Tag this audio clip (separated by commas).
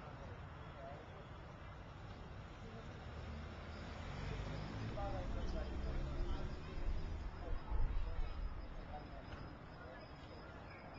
Speech, Vehicle, Car